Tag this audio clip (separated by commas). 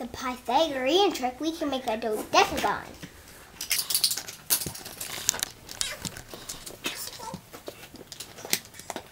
kid speaking